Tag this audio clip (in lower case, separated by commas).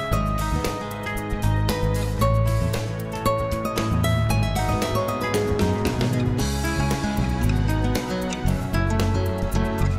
music